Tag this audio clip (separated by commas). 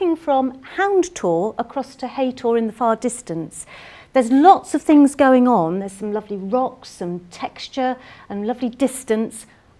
Speech